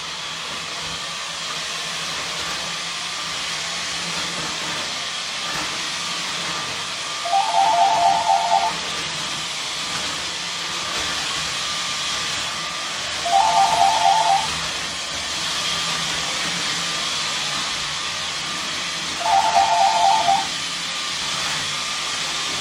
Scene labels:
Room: hallway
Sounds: vacuum cleaner, phone ringing

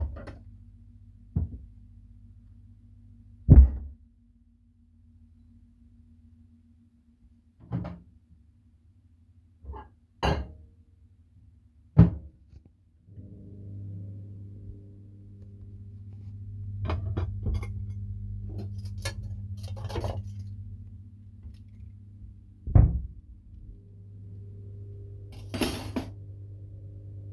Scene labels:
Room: kitchen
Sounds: microwave, cutlery and dishes

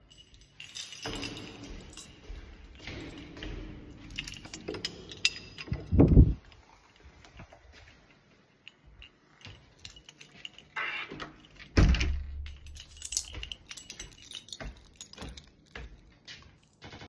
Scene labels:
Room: hallway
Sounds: keys, footsteps, door (more than once)

